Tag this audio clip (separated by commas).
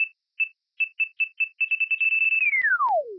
Alarm